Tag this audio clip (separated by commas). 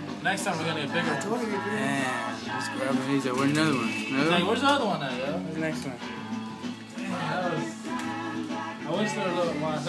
Music, Speech